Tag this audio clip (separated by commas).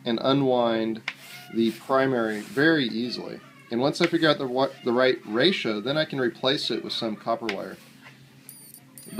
Speech